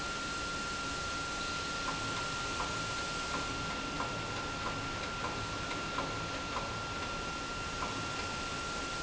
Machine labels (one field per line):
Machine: pump